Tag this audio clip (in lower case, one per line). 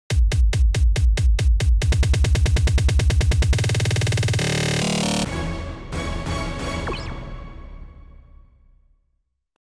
music
speech
drum machine